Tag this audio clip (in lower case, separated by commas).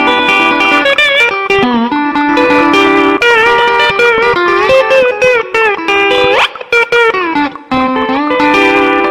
electric guitar, music, strum, musical instrument, plucked string instrument, guitar